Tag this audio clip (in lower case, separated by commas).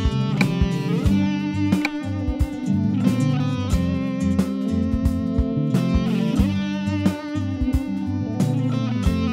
music